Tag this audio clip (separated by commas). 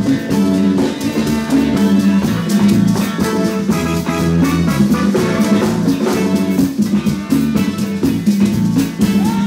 Music